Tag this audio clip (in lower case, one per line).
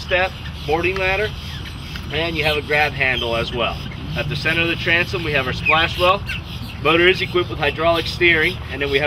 speech